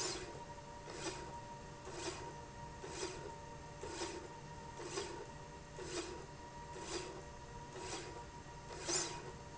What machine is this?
slide rail